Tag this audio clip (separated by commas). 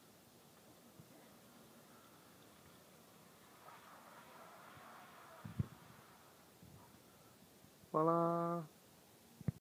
Sliding door, Speech